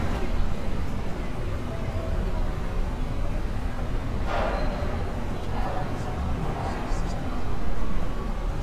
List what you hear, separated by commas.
engine of unclear size, non-machinery impact